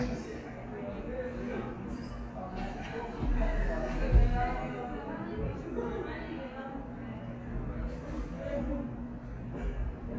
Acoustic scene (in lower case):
cafe